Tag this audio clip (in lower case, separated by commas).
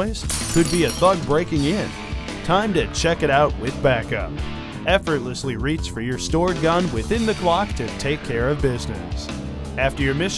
speech, music